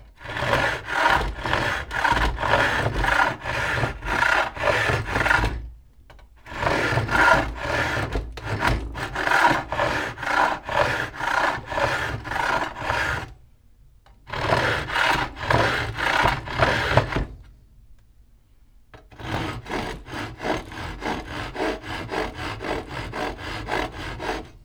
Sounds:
Sawing, Tools

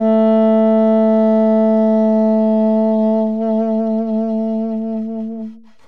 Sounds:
Music, Wind instrument, Musical instrument

